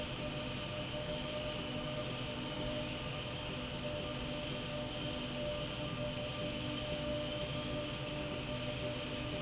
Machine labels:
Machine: slide rail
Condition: normal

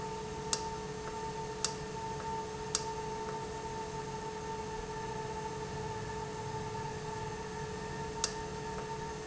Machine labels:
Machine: valve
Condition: normal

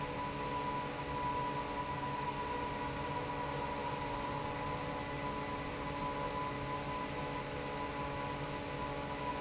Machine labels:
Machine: fan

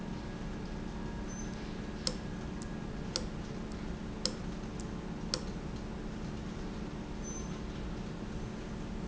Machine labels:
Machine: valve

